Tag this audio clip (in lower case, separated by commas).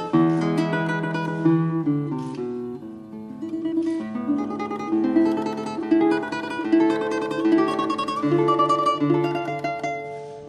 guitar, musical instrument, music, plucked string instrument